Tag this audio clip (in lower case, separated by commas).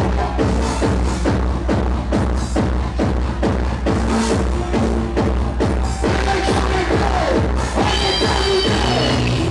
music